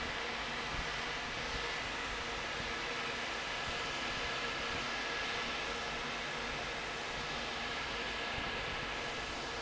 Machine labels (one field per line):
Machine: fan